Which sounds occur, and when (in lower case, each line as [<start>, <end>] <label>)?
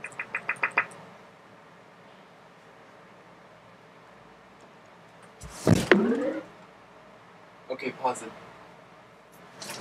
[0.00, 0.76] sound effect
[0.00, 9.80] mechanisms
[1.28, 1.51] generic impact sounds
[1.92, 2.20] generic impact sounds
[5.01, 5.31] generic impact sounds
[5.34, 6.36] sound effect
[6.02, 6.22] generic impact sounds
[6.43, 6.70] generic impact sounds
[7.62, 8.30] male speech
[9.21, 9.37] generic impact sounds
[9.55, 9.80] sound effect
[9.72, 9.80] generic impact sounds